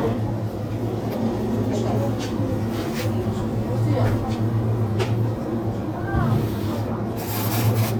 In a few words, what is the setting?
crowded indoor space